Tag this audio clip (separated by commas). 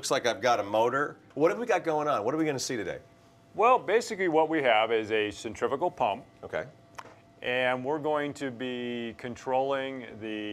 Speech